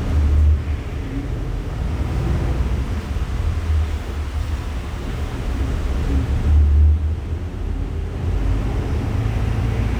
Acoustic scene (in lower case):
bus